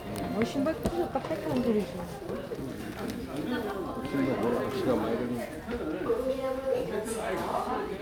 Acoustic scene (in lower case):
crowded indoor space